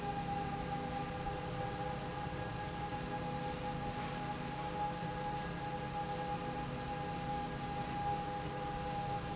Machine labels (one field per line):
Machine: slide rail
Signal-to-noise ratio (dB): -6 dB